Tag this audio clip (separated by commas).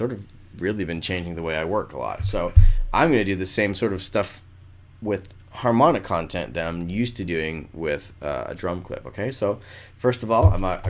Speech